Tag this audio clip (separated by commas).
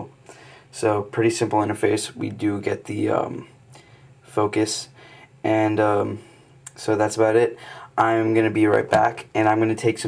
Speech